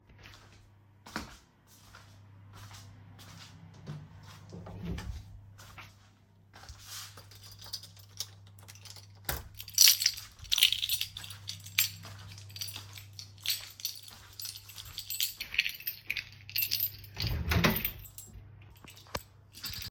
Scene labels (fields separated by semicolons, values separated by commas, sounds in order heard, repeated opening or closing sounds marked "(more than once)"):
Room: hallway, bedroom; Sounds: footsteps, keys, window